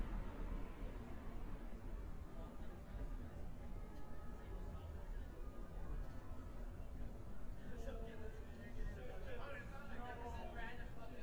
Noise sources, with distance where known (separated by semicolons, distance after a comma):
person or small group talking, near